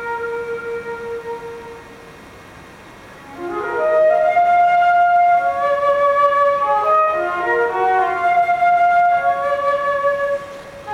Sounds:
playing flute, flute, music

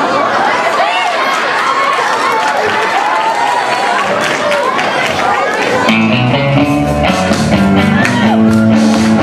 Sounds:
music

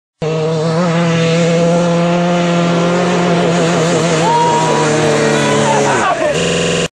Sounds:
motorcycle, vehicle

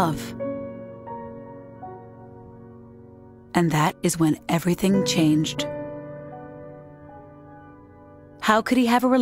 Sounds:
speech, music

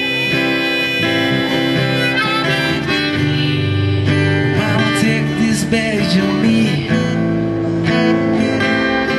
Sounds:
music

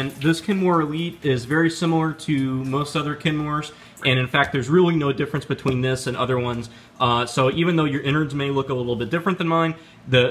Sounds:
speech, liquid

